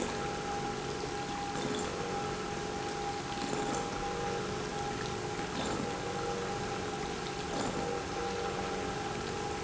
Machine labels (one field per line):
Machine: pump